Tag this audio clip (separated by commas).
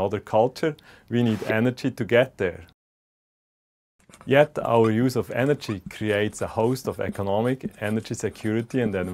Speech